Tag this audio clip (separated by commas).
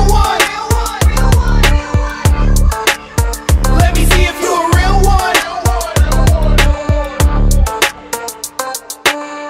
Pop music, Music